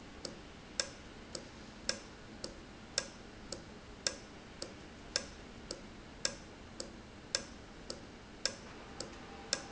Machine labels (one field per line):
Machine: valve